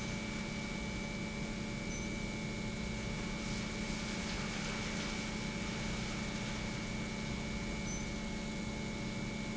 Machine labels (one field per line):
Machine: pump